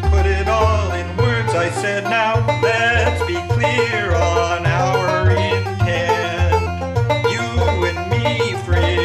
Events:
0.0s-3.2s: male singing
0.0s-9.0s: music
3.5s-8.0s: male singing
8.1s-9.0s: male singing

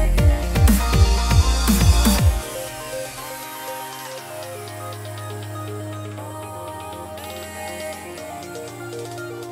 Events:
0.0s-9.5s: music
2.4s-4.6s: male speech
6.2s-9.1s: male speech

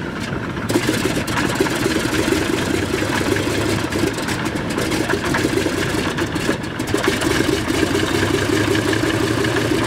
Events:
0.0s-9.8s: background noise
0.0s-9.8s: airplane
0.0s-9.8s: airscrew

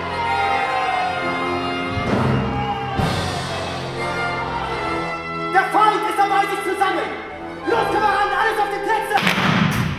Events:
0.0s-1.2s: cheering
0.0s-9.9s: music
1.9s-3.7s: human sounds
5.5s-7.2s: male speech
7.6s-9.2s: male speech
9.1s-9.9s: gunfire

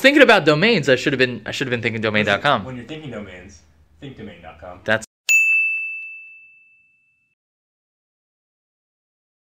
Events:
0.0s-3.6s: man speaking
0.0s-5.0s: conversation
0.0s-5.0s: background noise
3.9s-5.0s: man speaking
5.3s-7.3s: ding

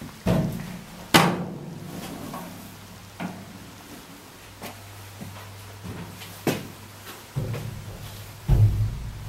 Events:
0.0s-9.2s: background noise
0.2s-0.5s: tap
0.6s-0.6s: tick
1.1s-1.8s: generic impact sounds
1.9s-2.6s: surface contact
3.2s-3.5s: tap
3.7s-4.3s: surface contact
4.6s-4.8s: walk
5.1s-5.5s: walk
5.8s-6.1s: walk
6.2s-6.8s: walk
7.0s-7.2s: walk
7.3s-7.6s: walk
8.5s-8.9s: stamp

